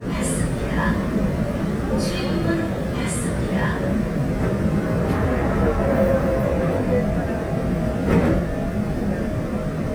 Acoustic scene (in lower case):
subway train